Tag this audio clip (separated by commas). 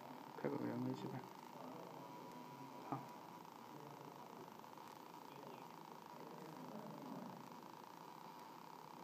Speech, inside a small room